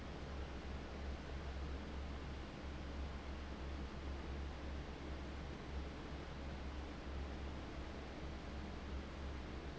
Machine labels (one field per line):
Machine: fan